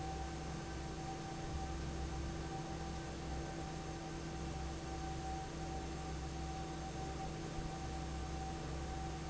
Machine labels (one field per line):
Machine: fan